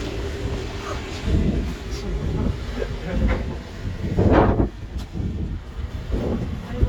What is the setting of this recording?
street